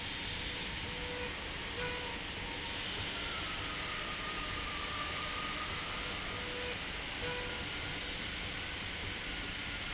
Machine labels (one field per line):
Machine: slide rail